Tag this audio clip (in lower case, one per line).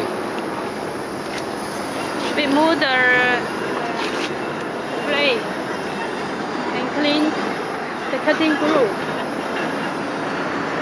speech